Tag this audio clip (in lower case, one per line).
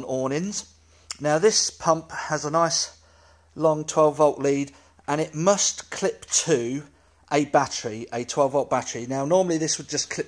speech